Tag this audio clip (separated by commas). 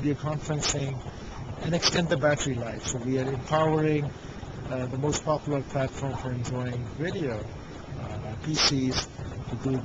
inside a large room or hall, Speech